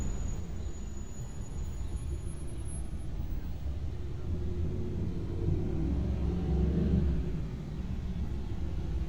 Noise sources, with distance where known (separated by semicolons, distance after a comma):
engine of unclear size